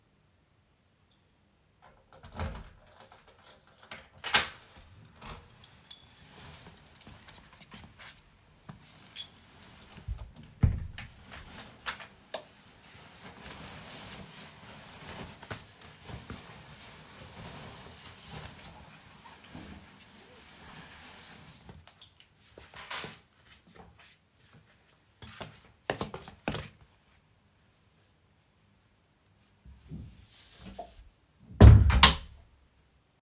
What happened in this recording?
I open the door, locks it, turn on the lights, remove my jacket, remove my sandals, opens bedroom door.